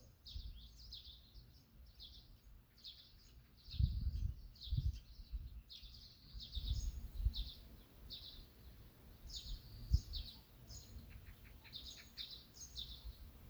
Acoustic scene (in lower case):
park